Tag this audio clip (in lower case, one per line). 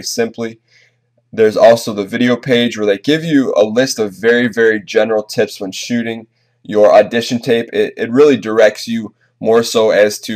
speech